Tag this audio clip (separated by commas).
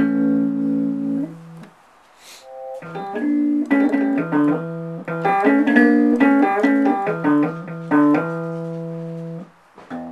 Musical instrument, Plucked string instrument, Guitar, Music